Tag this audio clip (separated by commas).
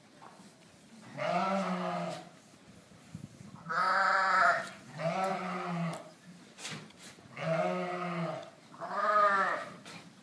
Animal, Goat, Sheep, livestock